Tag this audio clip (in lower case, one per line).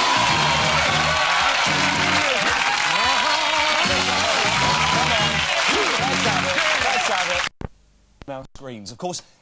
music
speech